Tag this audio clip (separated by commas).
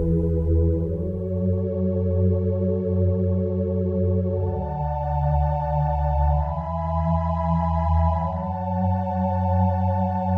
Music